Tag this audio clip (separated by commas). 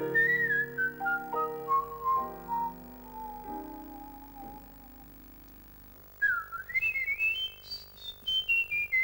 Piano, Keyboard (musical)